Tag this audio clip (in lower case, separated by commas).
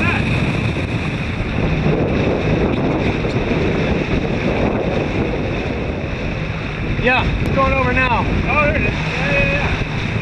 speech